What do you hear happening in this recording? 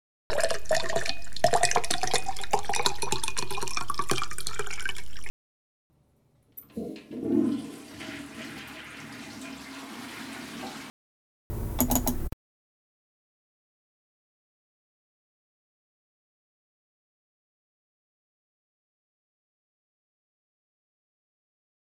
Handheld recording in bathroom. Light switch toggled on entry, toilet flushed, hands washed at sink.